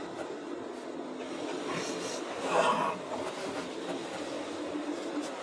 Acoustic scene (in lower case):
car